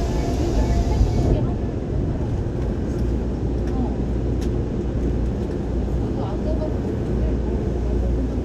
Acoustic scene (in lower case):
subway train